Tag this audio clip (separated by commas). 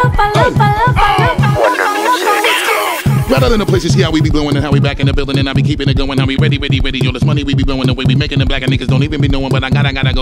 Music